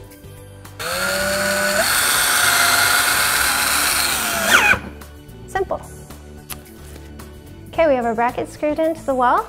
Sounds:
Power tool, Speech, Music

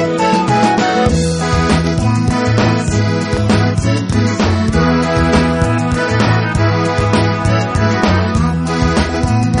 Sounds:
Music

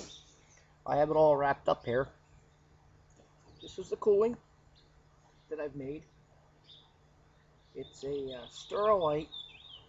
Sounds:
Speech

